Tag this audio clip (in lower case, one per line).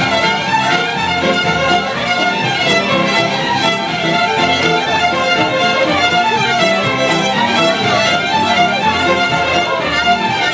fiddle
music
musical instrument